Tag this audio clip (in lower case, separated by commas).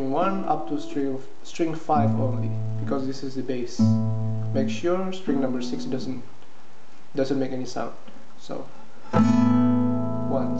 strum, guitar, music, musical instrument, speech, acoustic guitar, plucked string instrument